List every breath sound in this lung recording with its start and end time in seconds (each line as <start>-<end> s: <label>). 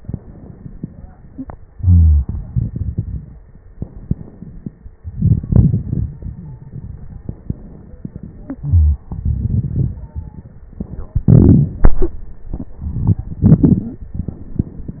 1.75-2.33 s: wheeze
1.75-3.61 s: exhalation
3.73-4.95 s: inhalation
3.73-4.95 s: crackles
5.03-7.21 s: exhalation
6.35-6.62 s: wheeze
7.19-8.02 s: inhalation
8.01-9.03 s: exhalation
8.57-9.06 s: wheeze
9.08-10.74 s: crackles
9.95-10.53 s: stridor